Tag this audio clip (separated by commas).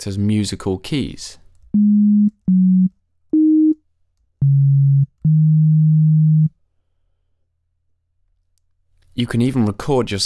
Speech, Music, Synthesizer